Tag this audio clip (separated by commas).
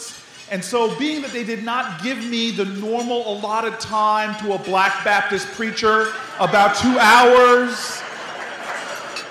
Narration, Male speech, Speech